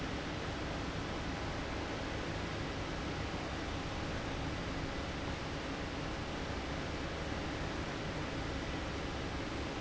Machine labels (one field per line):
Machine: fan